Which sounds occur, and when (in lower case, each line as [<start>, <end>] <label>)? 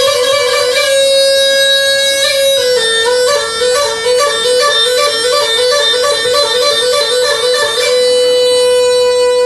[0.01, 9.45] music